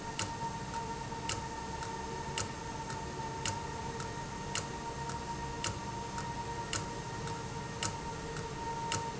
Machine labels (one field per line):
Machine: valve